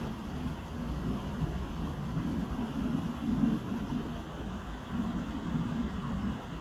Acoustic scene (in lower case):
park